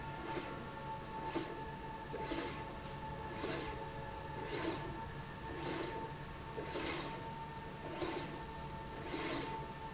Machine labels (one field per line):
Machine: slide rail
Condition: abnormal